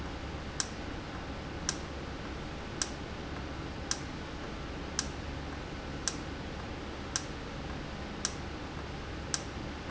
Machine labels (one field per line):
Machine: valve